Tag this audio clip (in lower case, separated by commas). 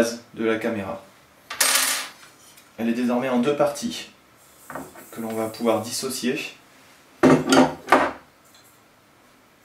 speech